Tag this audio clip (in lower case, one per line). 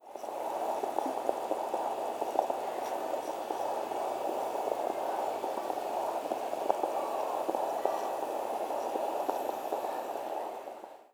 boiling
liquid